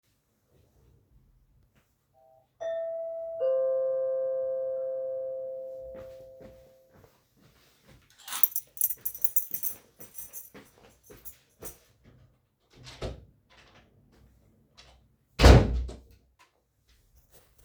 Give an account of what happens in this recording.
The doorbell rang, so i got up and walked to get my keys. Then i opened the door left the room and closed it again.